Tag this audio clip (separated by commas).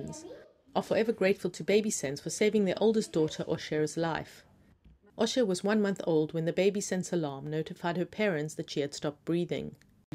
Speech